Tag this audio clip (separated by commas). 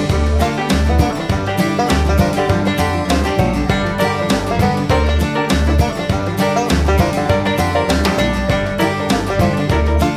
Music